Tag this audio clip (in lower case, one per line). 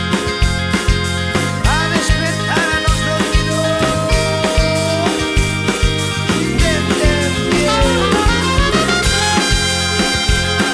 dance music
music